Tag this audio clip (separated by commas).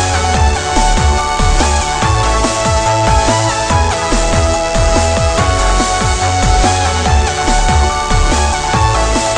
Music, Electronic music